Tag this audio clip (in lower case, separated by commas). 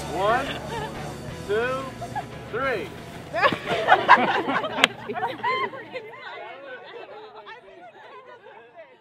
speech, outside, rural or natural, music